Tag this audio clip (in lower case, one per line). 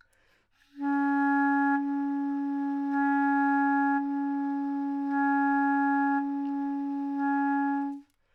musical instrument
wind instrument
music